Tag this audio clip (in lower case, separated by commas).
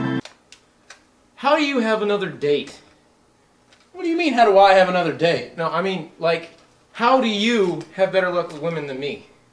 inside a small room, speech